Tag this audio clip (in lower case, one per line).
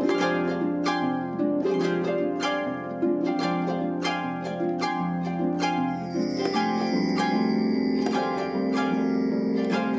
playing harp